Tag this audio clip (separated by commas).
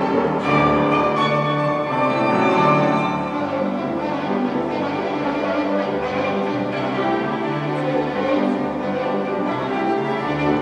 playing violin, fiddle, Musical instrument, Music